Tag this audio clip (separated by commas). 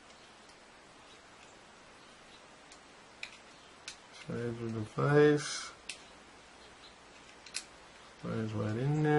Speech